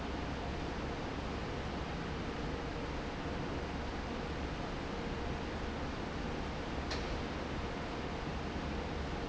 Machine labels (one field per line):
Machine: fan